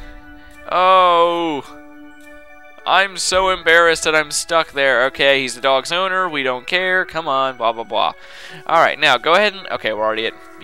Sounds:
Speech, Music

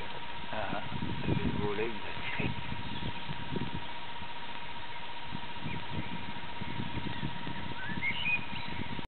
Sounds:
Animal, Bird, Speech

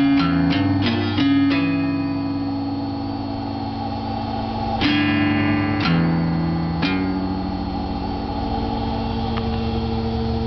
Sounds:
Music, Plucked string instrument, Strum, Musical instrument, Acoustic guitar, Guitar

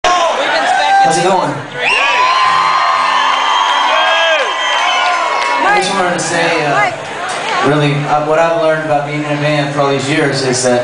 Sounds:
Crowd, Music

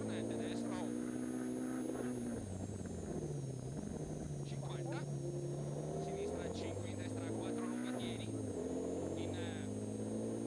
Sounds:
Speech

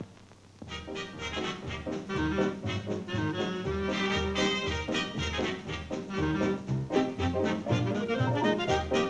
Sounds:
Music

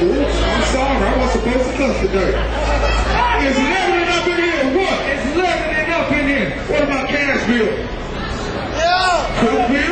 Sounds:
Speech

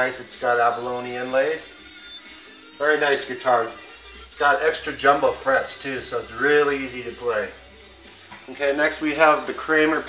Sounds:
Musical instrument, Plucked string instrument, Music, Electric guitar, Strum, Guitar, Speech

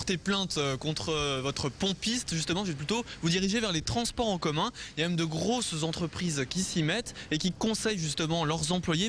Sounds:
Speech

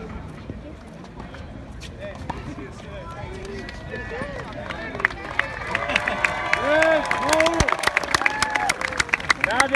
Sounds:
playing tennis

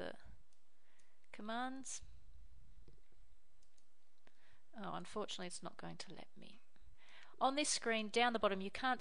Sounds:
Speech

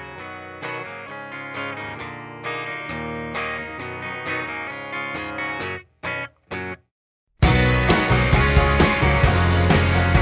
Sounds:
Music

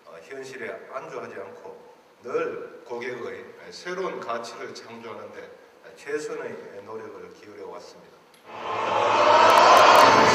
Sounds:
Speech

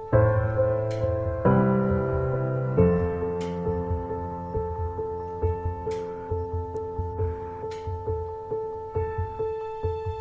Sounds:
Tick-tock, Music

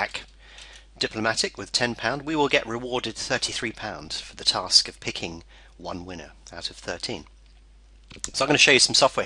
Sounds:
Speech

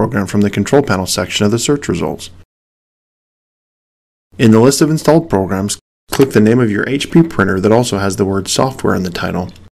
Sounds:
Speech

